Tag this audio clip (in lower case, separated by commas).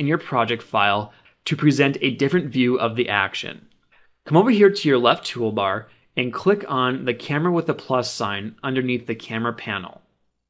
speech